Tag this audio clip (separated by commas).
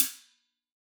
Cymbal, Percussion, Musical instrument, Music, Hi-hat